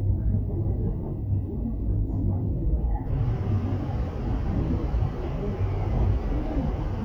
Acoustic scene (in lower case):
subway train